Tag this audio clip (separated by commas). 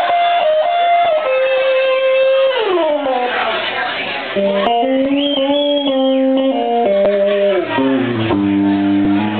inside a large room or hall, Music